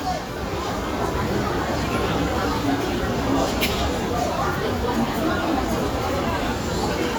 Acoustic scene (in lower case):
restaurant